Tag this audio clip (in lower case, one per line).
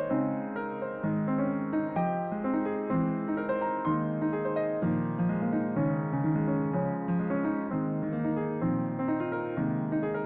music